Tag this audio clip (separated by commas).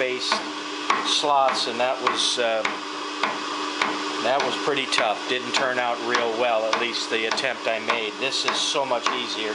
Tools, Speech